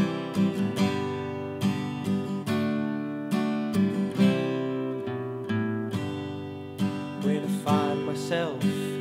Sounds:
Acoustic guitar, Music

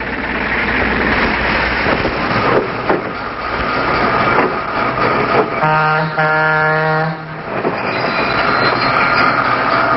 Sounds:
train wagon

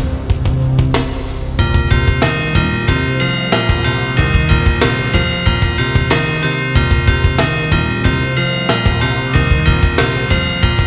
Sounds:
Music

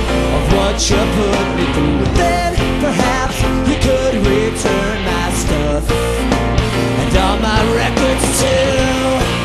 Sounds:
Music

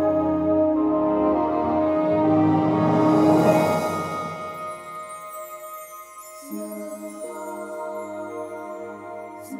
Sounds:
Music, Soundtrack music, Happy music

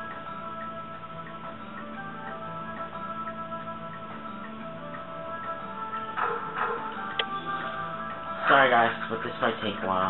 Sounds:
Speech, Music

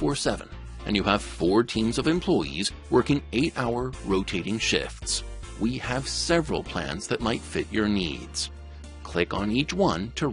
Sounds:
Speech, Music

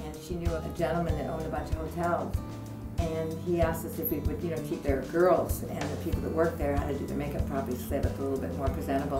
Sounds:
Music, Speech

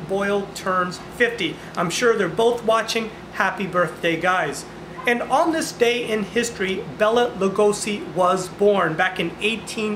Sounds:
Speech

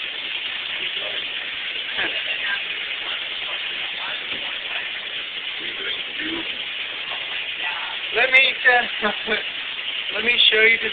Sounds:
Speech

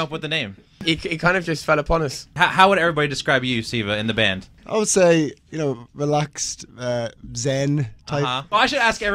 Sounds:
Radio, Speech

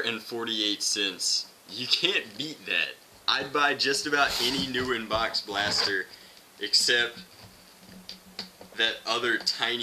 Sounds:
Speech

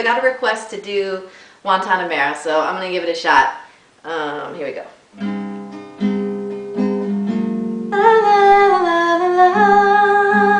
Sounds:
Speech, Music, Female singing

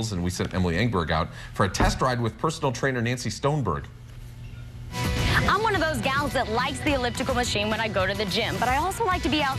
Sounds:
Speech, Music

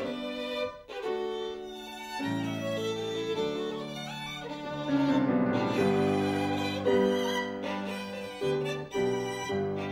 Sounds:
fiddle, Musical instrument, Music

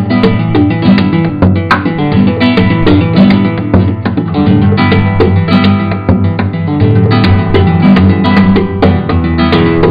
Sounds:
Guitar, Musical instrument, Plucked string instrument, Music

